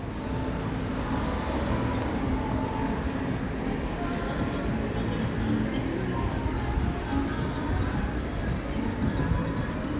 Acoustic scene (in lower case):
street